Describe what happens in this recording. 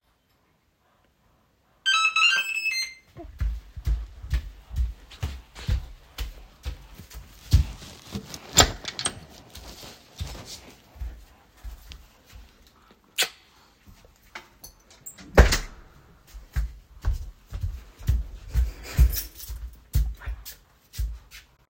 The door bell rang and I walked to the door to open it. I greeted my wife with a kiss. Then I closed the door and walked away while she put back her keychains.